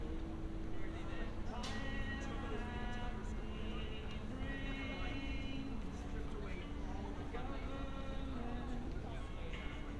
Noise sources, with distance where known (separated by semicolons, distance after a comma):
music from a fixed source, near; person or small group talking, far